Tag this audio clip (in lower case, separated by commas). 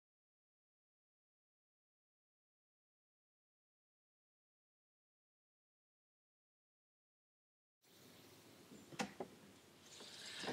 door